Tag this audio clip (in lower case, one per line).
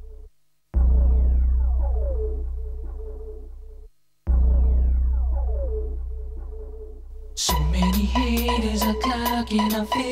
music